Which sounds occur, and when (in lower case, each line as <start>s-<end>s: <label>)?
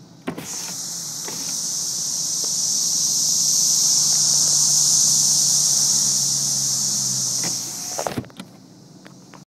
0.0s-9.3s: car
0.2s-0.7s: electric windows
0.4s-8.1s: insect
1.1s-1.5s: electric windows
2.4s-2.5s: tap
3.7s-7.4s: car passing by
7.4s-8.5s: electric windows
9.0s-9.1s: generic impact sounds
9.2s-9.3s: generic impact sounds